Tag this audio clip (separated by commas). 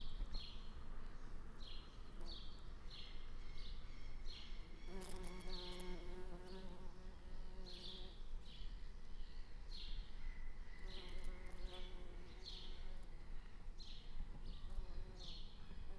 Bird vocalization, Bird, Animal, Wild animals